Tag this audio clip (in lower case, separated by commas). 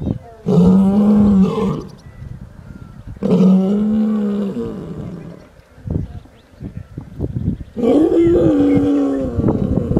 lions roaring